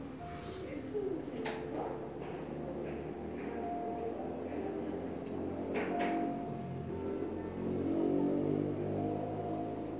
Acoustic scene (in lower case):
crowded indoor space